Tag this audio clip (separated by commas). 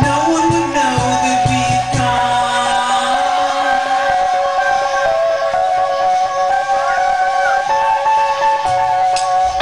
Music